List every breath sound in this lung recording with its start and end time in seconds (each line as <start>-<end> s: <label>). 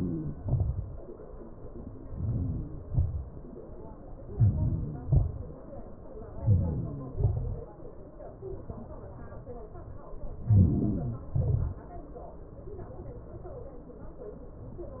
0.00-0.40 s: inhalation
0.44-0.82 s: exhalation
1.94-2.62 s: inhalation
2.64-3.09 s: exhalation
4.19-4.82 s: inhalation
4.93-5.54 s: exhalation
6.11-6.81 s: inhalation
6.85-7.42 s: exhalation
10.15-11.12 s: inhalation
11.12-11.84 s: exhalation